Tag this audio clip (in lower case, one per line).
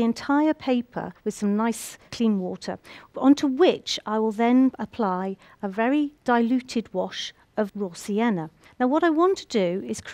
speech